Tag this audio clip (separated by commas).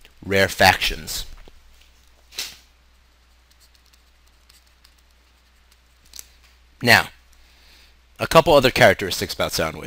Speech